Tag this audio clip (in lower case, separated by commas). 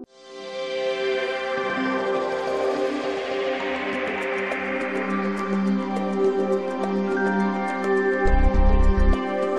soundtrack music, new-age music, tender music, music